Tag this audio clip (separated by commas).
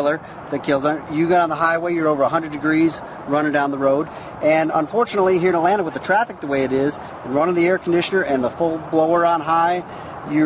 Speech